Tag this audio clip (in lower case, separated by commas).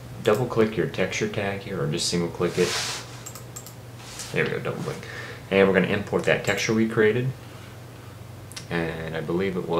speech